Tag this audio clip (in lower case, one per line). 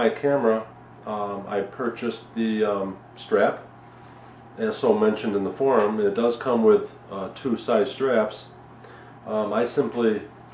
speech